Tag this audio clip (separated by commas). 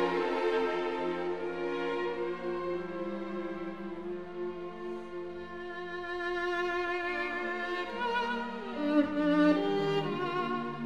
Music, Violin, Musical instrument